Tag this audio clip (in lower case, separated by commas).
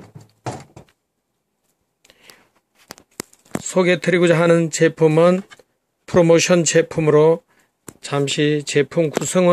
speech, tools